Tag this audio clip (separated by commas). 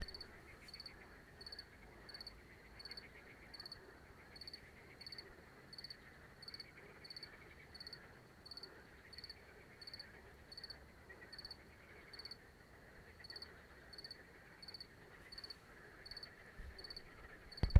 Cricket, Wild animals, Insect, Animal